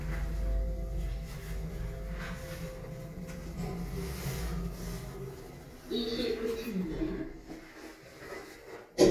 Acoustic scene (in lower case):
elevator